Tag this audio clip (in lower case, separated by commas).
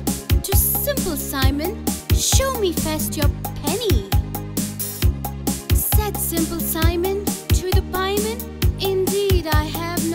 speech, music